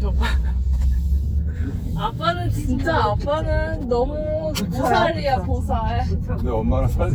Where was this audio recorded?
in a car